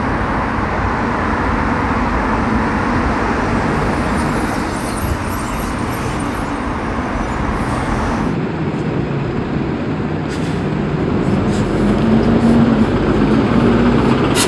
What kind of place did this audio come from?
street